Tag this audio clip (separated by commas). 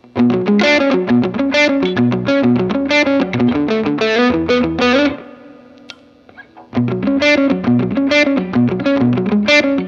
Strum, Electric guitar, Guitar, Musical instrument, Music, Bass guitar, Plucked string instrument